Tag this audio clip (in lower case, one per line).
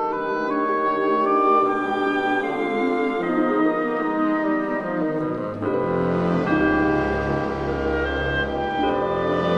music